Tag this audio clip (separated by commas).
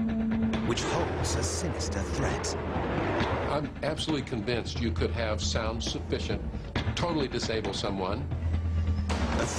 Speech, Music